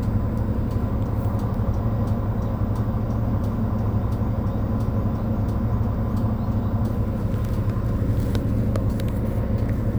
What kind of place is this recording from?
bus